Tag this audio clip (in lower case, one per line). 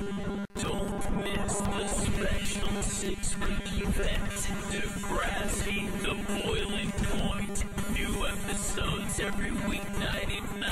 music